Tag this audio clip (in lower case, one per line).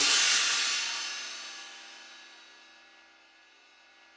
hi-hat
percussion
music
musical instrument
cymbal